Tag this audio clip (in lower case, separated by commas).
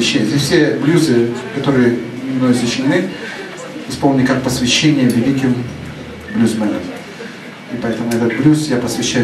speech